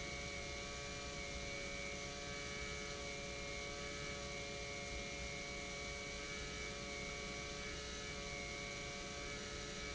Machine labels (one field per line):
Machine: pump